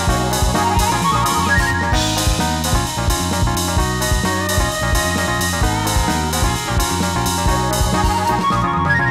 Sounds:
Jingle (music), Music

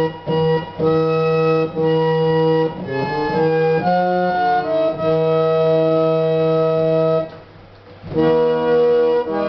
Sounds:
Hammond organ, Organ

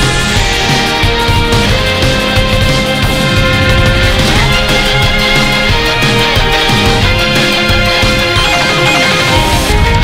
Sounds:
Music

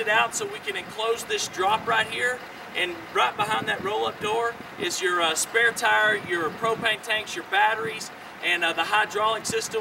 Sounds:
Speech

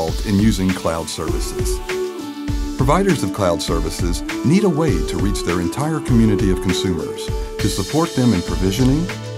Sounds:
Music, Speech

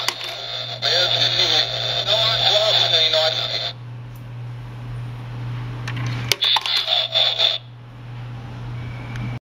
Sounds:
Speech

